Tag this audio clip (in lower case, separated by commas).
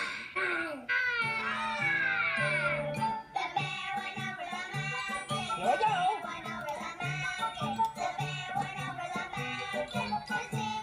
speech, music